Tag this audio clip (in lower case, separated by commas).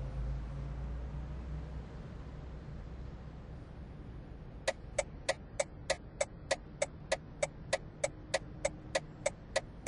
vehicle